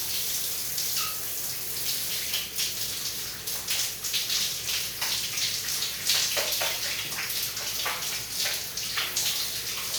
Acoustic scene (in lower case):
restroom